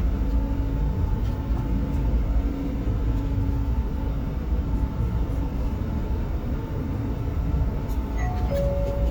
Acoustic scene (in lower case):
bus